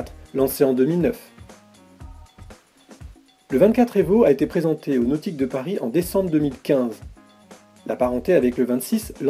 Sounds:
speech, music

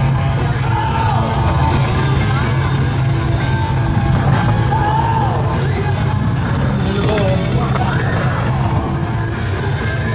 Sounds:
speech, skateboard, music

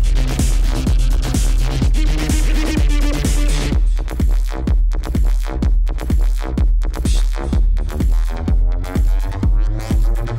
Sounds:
music, sound effect

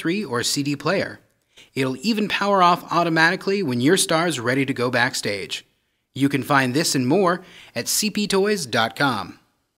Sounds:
speech

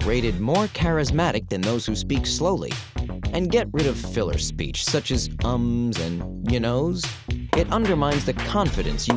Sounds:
speech, music, inside a small room

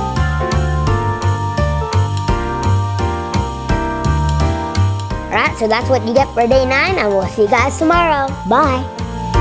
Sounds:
speech, music, child speech

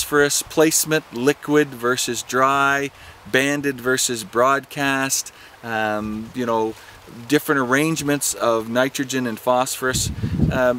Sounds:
speech

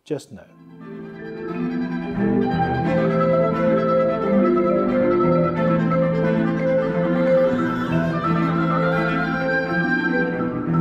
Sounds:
playing oboe

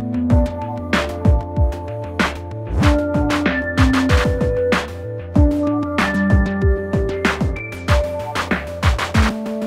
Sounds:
electric grinder grinding

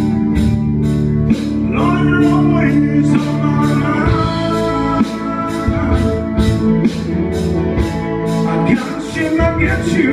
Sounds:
music, male singing

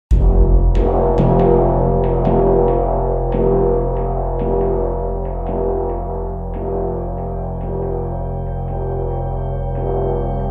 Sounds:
gong

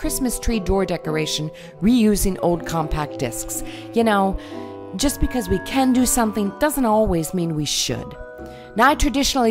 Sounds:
music, speech

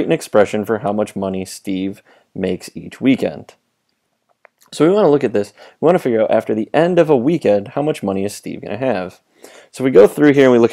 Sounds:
speech

